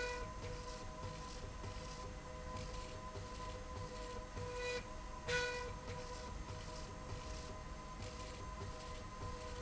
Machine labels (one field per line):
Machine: slide rail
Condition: normal